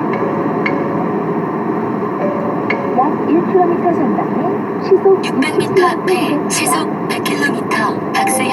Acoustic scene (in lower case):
car